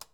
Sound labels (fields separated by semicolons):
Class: switch; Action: being turned off; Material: plastic